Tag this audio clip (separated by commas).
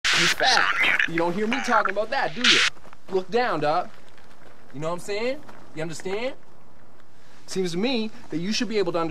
Speech